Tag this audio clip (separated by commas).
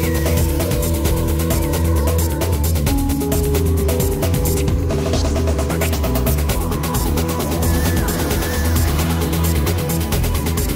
Music